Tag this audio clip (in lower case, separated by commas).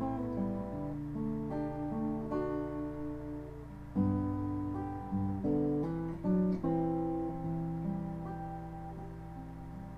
acoustic guitar, plucked string instrument, guitar, musical instrument, music, bowed string instrument